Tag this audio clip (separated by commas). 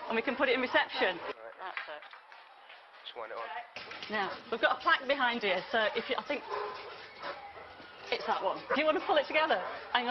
Speech